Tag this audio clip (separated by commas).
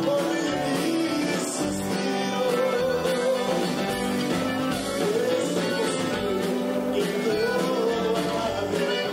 Country, Music, Singing